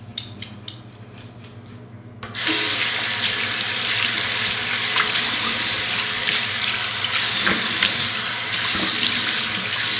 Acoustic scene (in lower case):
restroom